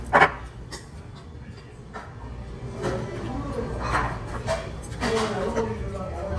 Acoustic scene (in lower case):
restaurant